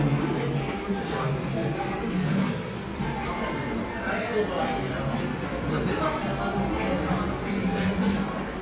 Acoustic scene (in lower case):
cafe